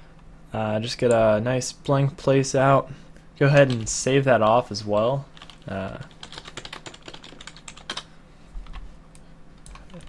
A man speaks and types on a keyboard and clicks a mouse